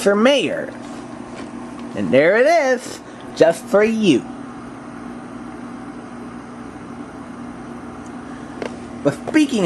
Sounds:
speech

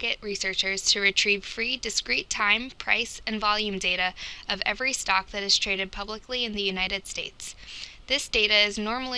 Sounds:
speech

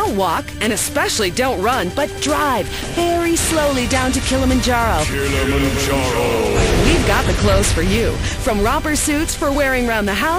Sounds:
music
speech

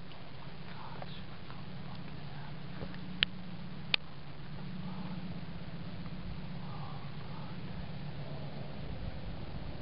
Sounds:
speech

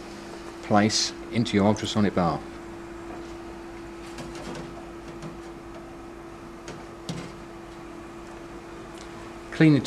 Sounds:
speech

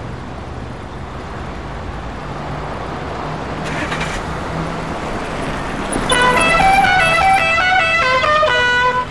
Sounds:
vehicle horn

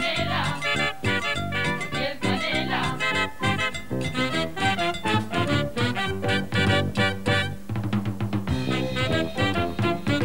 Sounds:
music

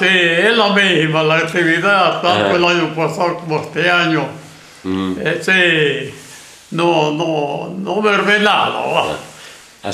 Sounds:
speech

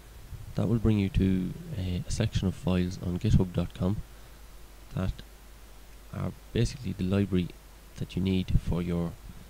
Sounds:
inside a small room
speech

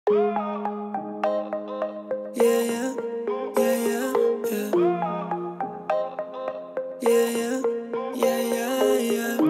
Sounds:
rapping

